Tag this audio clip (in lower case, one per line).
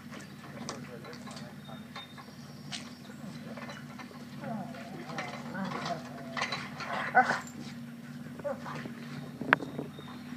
speech